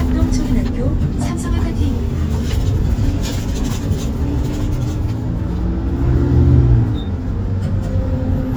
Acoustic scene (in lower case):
bus